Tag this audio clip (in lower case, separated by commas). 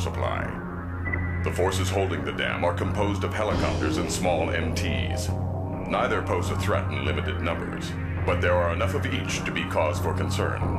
speech, music